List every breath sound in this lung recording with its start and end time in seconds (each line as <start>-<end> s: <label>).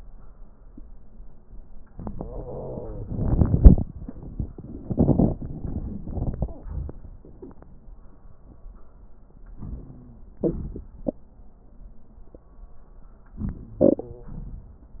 2.19-3.29 s: wheeze
9.60-10.31 s: wheeze